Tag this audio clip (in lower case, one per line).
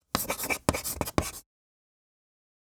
home sounds
writing